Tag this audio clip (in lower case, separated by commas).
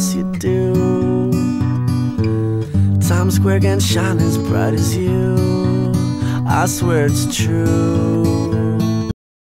music